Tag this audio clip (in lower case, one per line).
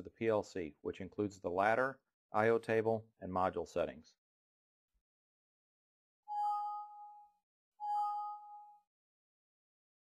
speech